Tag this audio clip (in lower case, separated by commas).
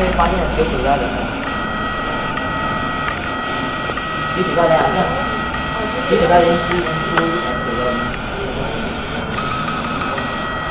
printer, speech